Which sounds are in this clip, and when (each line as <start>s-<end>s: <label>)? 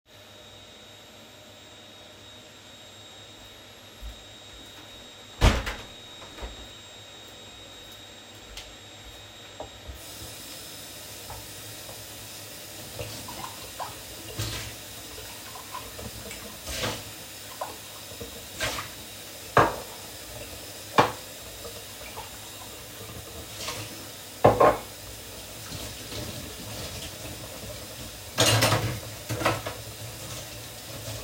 0.1s-31.2s: vacuum cleaner
3.9s-5.3s: footsteps
5.3s-6.8s: window
6.7s-9.3s: footsteps
9.4s-31.2s: running water
19.5s-21.2s: cutlery and dishes
24.2s-25.0s: cutlery and dishes
28.3s-29.8s: cutlery and dishes